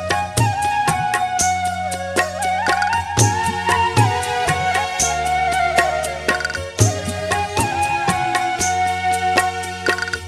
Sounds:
Folk music, Music

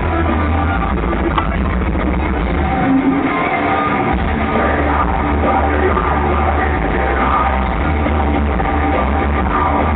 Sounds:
Music

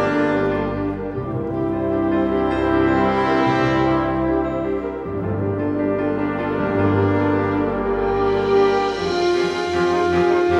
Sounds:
Music

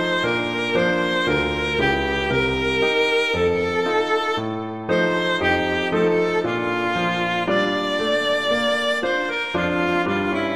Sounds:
Music, Violin, Musical instrument

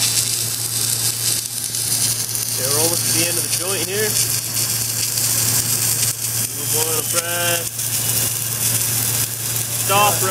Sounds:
arc welding

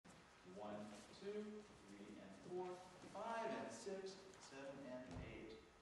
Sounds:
Speech

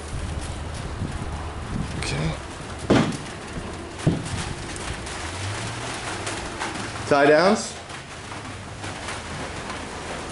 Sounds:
Speech

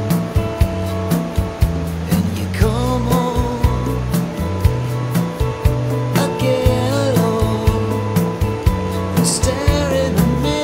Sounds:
Music

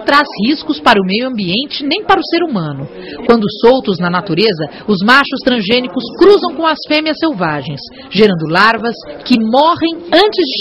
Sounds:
Speech

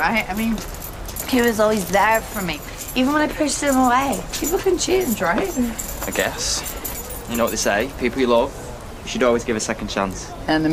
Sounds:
Speech, footsteps

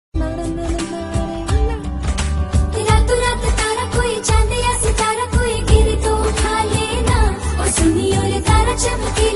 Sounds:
Music of Bollywood, Singing

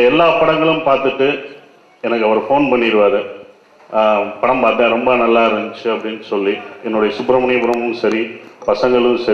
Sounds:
Male speech, Speech, Narration

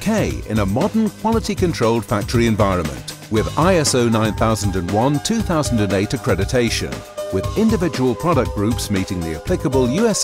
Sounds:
Music, Speech

